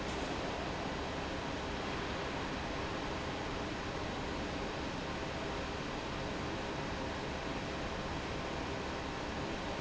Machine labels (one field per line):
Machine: fan